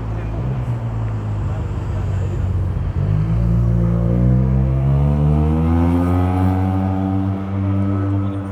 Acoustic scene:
street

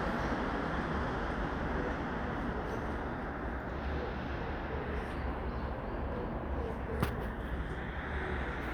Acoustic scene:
street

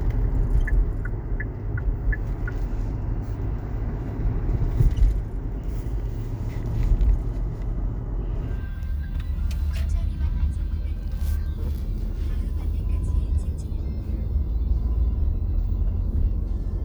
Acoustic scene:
car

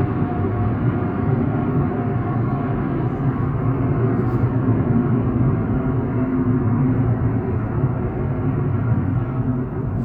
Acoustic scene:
car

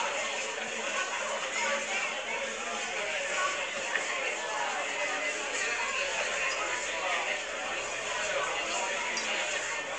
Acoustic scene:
crowded indoor space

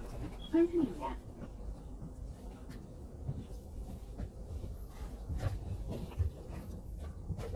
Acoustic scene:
bus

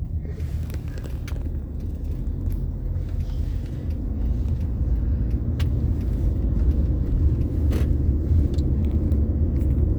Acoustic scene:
car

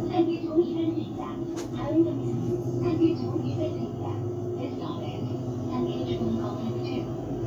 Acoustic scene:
bus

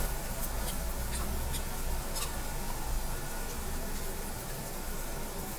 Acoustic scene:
restaurant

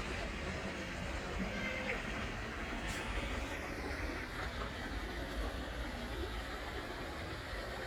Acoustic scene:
park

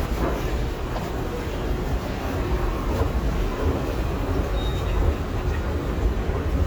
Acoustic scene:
subway station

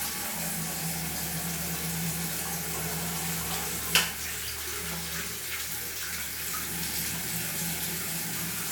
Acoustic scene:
restroom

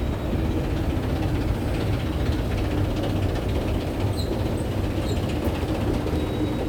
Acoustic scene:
subway station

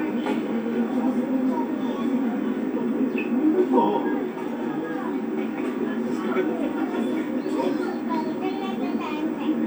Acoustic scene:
park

